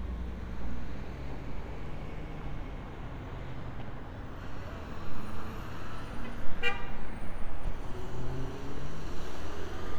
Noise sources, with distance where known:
medium-sounding engine
large-sounding engine
car horn, near

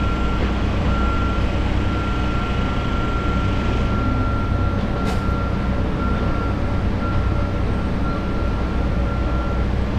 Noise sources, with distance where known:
large-sounding engine, near
reverse beeper, near

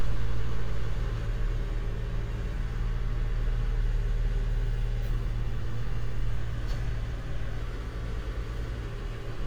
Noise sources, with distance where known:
engine of unclear size, near

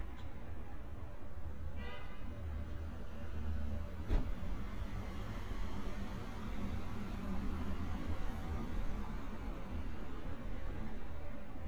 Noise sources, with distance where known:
car horn, far

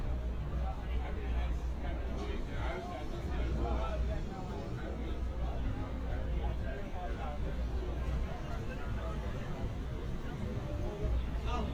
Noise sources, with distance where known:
person or small group talking, near

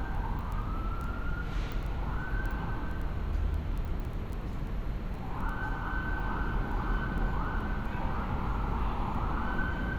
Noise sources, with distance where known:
siren, far

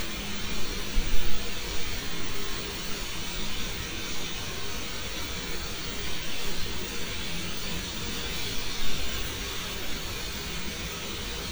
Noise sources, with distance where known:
engine of unclear size
unidentified impact machinery, near

